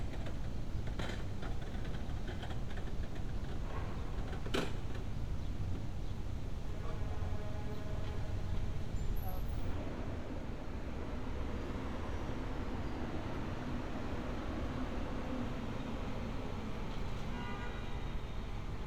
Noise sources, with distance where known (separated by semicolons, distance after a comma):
car horn